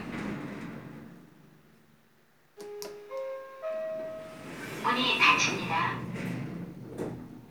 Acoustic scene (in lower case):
elevator